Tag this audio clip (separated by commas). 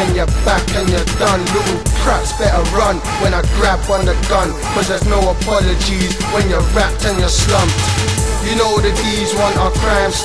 Music